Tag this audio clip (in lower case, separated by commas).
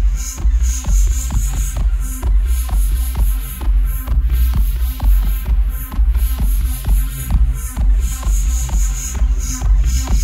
music